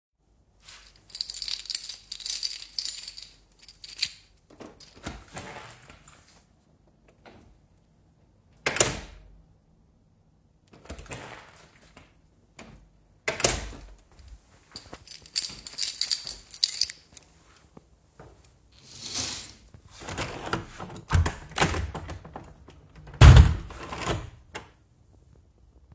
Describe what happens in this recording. I go through the keychain and open the door, then close it. I proceed to walk to the window in the room. I open and close the window